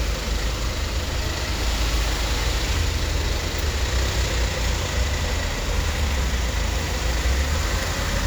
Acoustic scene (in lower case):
street